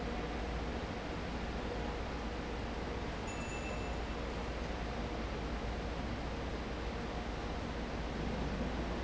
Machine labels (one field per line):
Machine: fan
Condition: abnormal